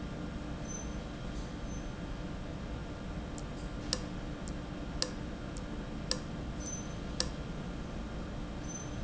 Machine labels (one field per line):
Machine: valve